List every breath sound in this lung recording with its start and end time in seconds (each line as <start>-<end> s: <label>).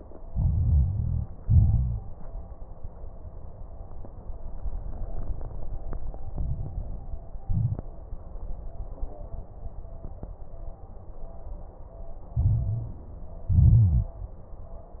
0.24-1.23 s: inhalation
0.24-1.23 s: crackles
1.39-2.16 s: exhalation
1.39-2.16 s: crackles
6.35-7.28 s: inhalation
6.35-7.28 s: crackles
7.45-7.88 s: exhalation
7.45-7.88 s: crackles
12.37-13.17 s: inhalation
12.37-13.17 s: crackles
13.49-14.15 s: exhalation
13.49-14.15 s: crackles